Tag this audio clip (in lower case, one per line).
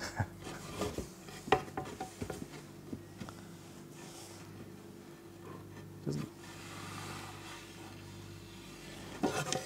wood